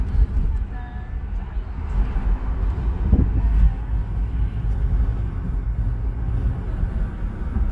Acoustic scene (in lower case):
car